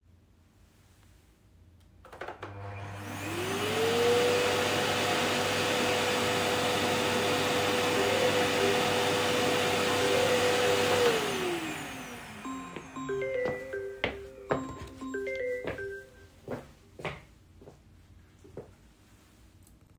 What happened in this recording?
i turned on the vacuum cleaner, my phone rang, turned off the vacuum cleaner, walked to my phone, took my phone, walked away, took the call